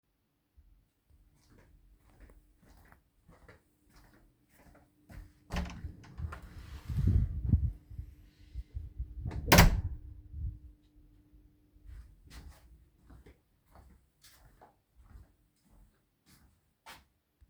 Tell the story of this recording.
I walked to a door, opened it, waited till closed by itself, walked on.